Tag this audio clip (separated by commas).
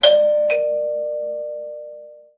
Door, Alarm, Doorbell, home sounds